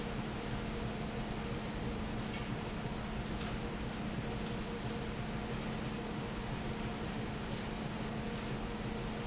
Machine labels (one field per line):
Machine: fan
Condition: normal